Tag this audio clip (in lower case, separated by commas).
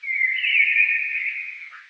wild animals, bird, animal